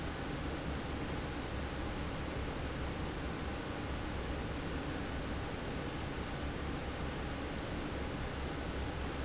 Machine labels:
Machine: fan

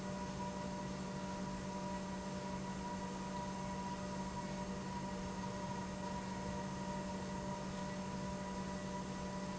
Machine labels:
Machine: pump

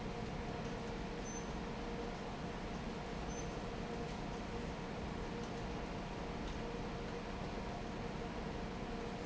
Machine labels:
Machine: fan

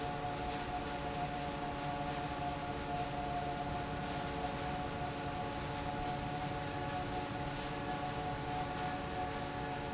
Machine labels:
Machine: fan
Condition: normal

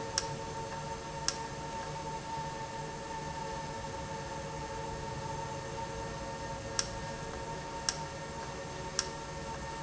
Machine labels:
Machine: valve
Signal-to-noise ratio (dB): -6 dB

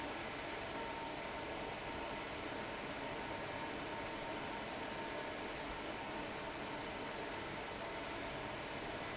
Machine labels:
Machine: fan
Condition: abnormal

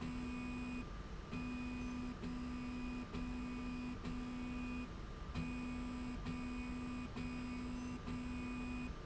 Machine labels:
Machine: slide rail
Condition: normal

